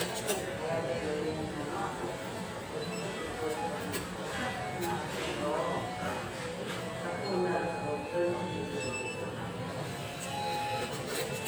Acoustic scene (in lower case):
restaurant